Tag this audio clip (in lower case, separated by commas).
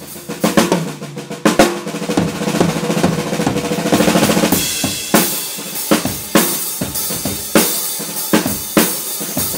sound effect, music